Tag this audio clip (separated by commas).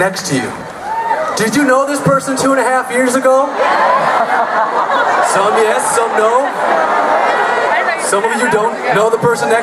Speech, Male speech, Narration